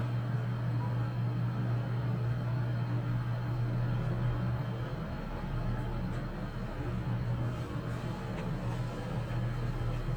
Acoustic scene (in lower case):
elevator